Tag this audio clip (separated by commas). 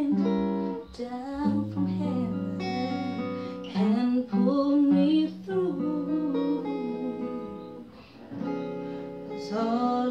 Music, Singing, Guitar, Acoustic guitar, Plucked string instrument, Musical instrument